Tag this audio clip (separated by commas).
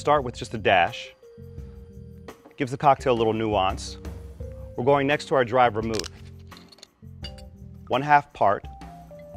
Music, Speech